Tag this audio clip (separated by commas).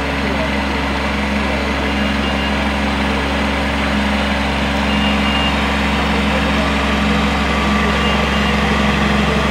tractor digging